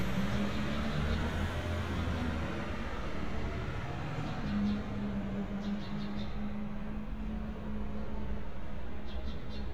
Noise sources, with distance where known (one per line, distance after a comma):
large-sounding engine